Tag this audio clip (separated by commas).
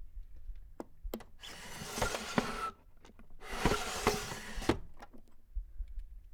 Domestic sounds, Drawer open or close